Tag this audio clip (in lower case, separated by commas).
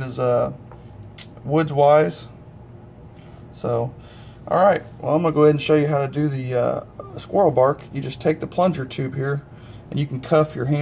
speech